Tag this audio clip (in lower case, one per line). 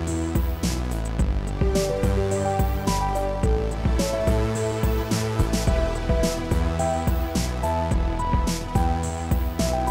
music